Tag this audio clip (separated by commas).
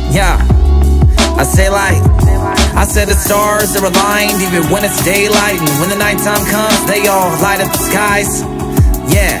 Music, Rhythm and blues